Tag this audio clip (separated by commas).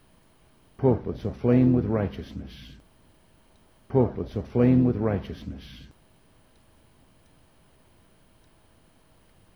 Speech, Human voice